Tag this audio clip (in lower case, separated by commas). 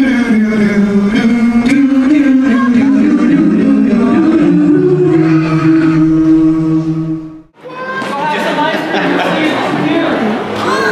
speech, music